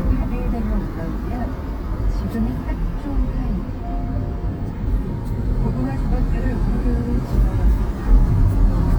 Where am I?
in a car